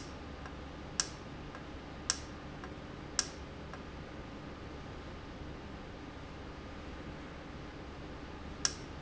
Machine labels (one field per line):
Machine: valve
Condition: normal